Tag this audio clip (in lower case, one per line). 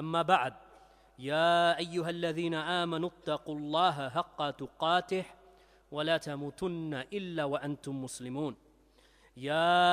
speech